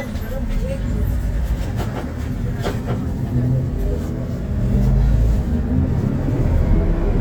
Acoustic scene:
bus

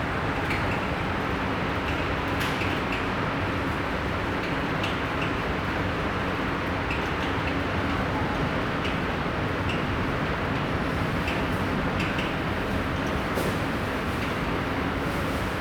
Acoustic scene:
subway station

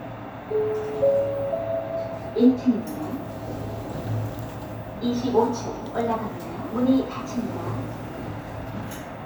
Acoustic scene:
elevator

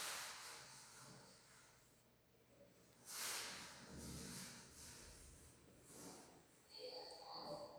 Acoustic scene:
elevator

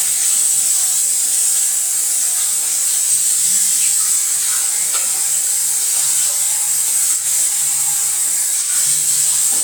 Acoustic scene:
restroom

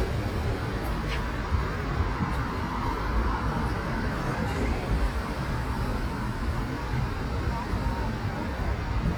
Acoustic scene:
street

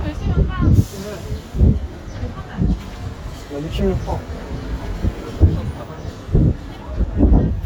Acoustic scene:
street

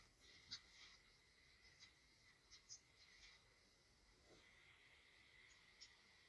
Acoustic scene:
elevator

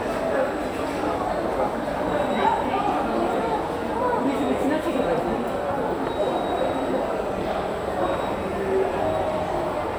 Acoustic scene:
subway station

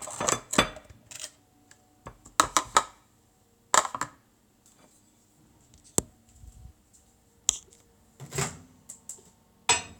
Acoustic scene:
kitchen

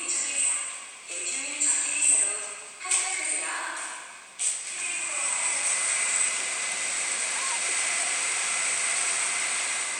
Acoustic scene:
subway station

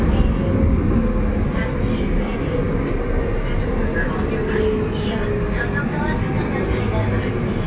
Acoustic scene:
subway train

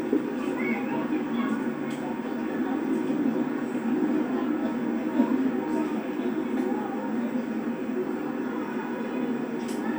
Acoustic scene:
park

